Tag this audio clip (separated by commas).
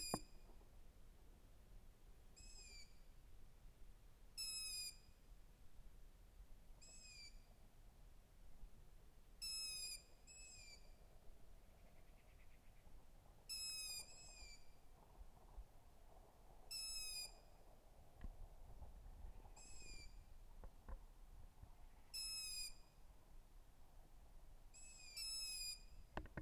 Wild animals, Bird, Animal